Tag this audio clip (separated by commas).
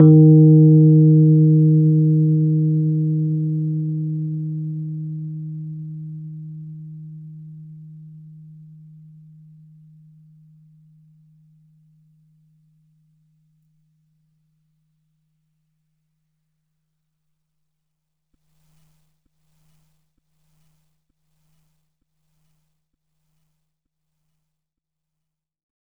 Piano, Musical instrument, Keyboard (musical), Music